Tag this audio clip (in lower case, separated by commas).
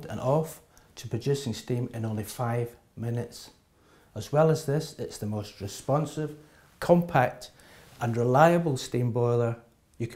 speech